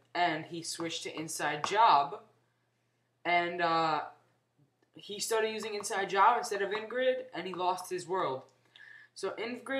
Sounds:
Speech

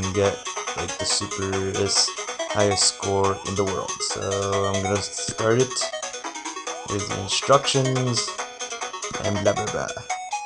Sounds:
Music, Speech

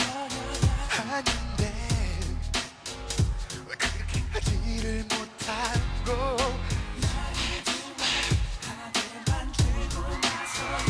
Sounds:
Music

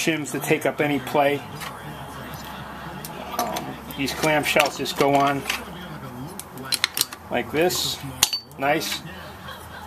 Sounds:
Speech

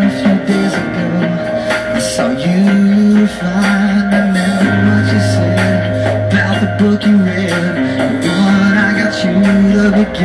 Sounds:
Music, Singing

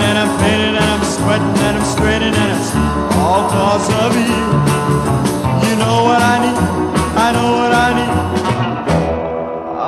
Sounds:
Music

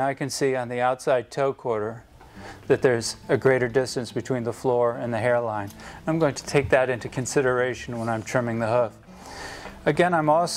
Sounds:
Speech, Music

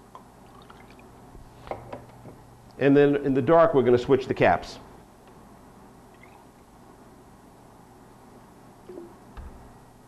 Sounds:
Speech

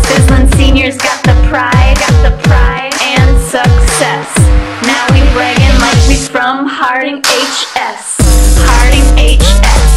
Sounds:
Music

